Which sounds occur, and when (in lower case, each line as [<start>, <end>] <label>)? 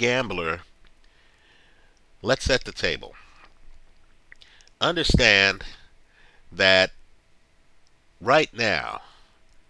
[0.00, 0.60] male speech
[0.00, 9.65] background noise
[0.57, 0.67] surface contact
[0.77, 0.86] tick
[1.00, 1.07] tick
[1.09, 1.90] breathing
[1.90, 1.98] tick
[2.15, 3.10] male speech
[3.00, 3.45] breathing
[4.28, 4.34] tick
[4.36, 4.66] breathing
[4.58, 4.67] tick
[4.78, 5.55] male speech
[5.01, 5.18] wind noise (microphone)
[5.52, 5.84] breathing
[6.01, 6.38] breathing
[6.56, 6.87] male speech
[7.85, 7.92] tick
[8.19, 9.03] male speech
[8.86, 9.38] breathing
[9.43, 9.51] tick